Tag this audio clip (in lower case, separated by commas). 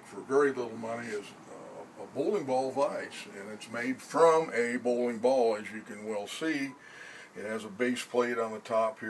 speech